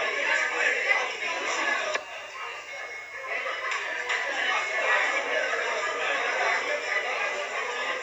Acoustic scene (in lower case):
crowded indoor space